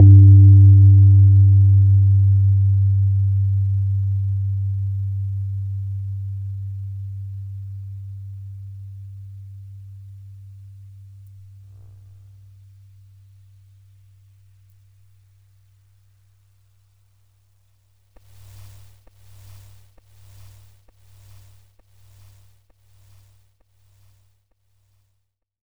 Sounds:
keyboard (musical), musical instrument, piano, music

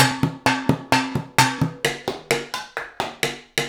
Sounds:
music, drum kit, musical instrument, percussion

